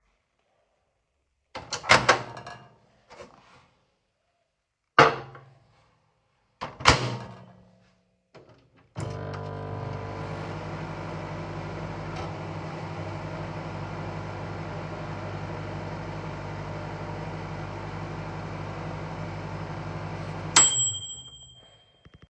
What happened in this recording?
I opened the microwave, placed my plate inside making a dish sound, switched it on, turned it off, and removed the dish.